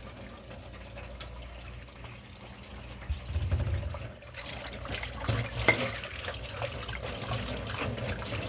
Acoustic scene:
kitchen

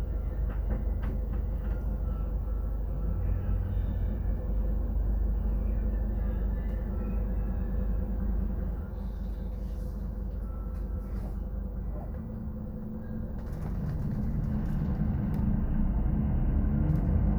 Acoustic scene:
bus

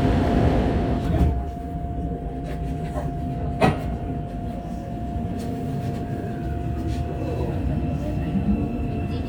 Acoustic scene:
subway train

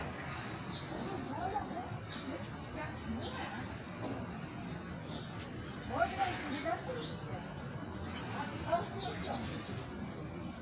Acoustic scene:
park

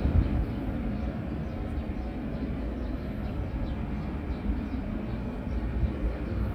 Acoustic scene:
residential area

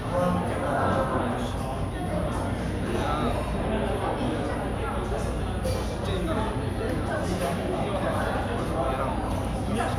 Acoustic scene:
cafe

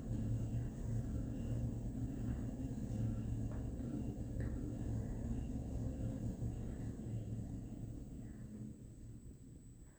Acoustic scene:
elevator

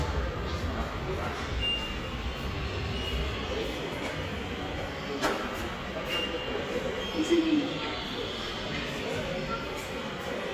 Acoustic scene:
subway station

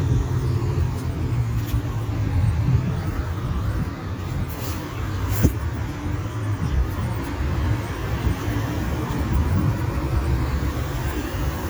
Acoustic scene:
street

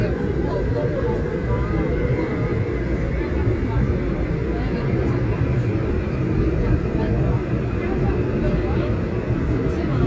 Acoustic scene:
subway train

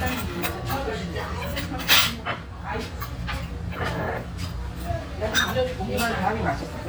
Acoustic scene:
restaurant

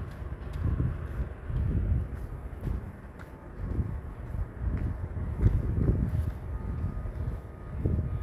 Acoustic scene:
residential area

